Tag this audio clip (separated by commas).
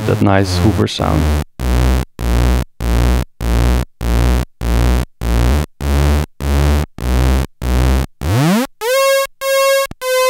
playing synthesizer